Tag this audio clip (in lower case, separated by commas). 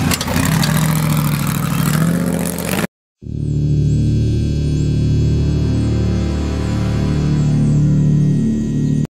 music